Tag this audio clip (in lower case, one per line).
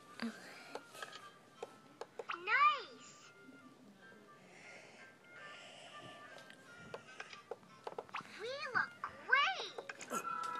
speech
music